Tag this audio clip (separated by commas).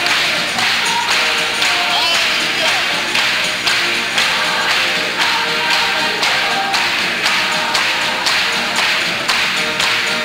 Choir, Music